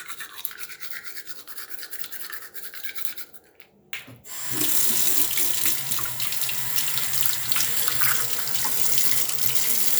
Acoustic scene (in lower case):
restroom